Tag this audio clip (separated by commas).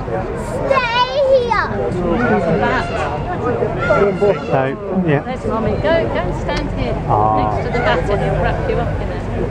Speech